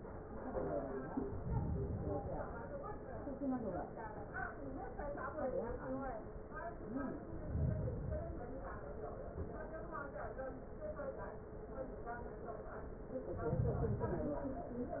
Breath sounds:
Inhalation: 1.10-2.60 s, 7.17-8.67 s, 13.18-14.68 s

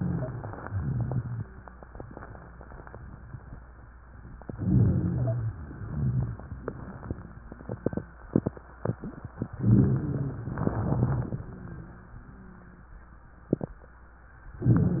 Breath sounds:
Inhalation: 0.00-0.61 s, 4.53-5.50 s, 9.60-10.57 s
Exhalation: 0.65-1.43 s, 5.62-6.39 s, 10.66-11.44 s
Wheeze: 0.00-0.61 s
Rhonchi: 0.65-1.43 s, 4.53-5.50 s, 5.62-6.39 s, 9.60-10.57 s, 10.66-11.44 s

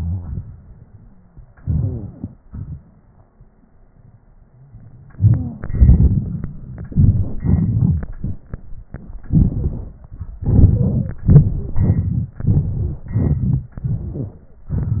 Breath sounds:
Wheeze: 1.70-2.34 s

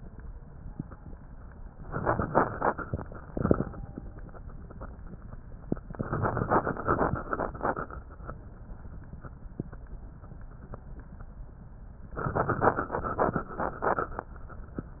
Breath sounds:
Inhalation: 1.79-3.76 s, 5.77-8.06 s, 12.18-14.29 s

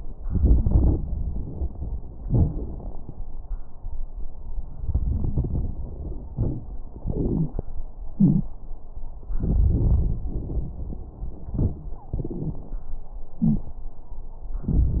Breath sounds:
Inhalation: 0.24-1.02 s, 4.82-5.90 s, 7.04-7.65 s, 9.42-10.72 s, 13.41-13.74 s
Exhalation: 2.27-3.01 s, 6.39-6.71 s, 8.12-8.50 s, 11.54-12.73 s, 14.68-15.00 s
Wheeze: 7.04-7.65 s, 8.12-8.50 s, 13.41-13.74 s
Crackles: 0.24-1.02 s, 2.27-3.01 s, 4.82-5.90 s, 6.39-6.71 s, 9.42-10.72 s, 11.54-12.73 s, 14.68-15.00 s

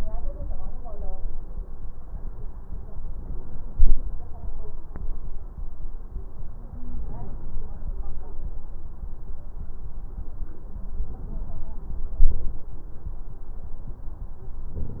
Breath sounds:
No breath sounds were labelled in this clip.

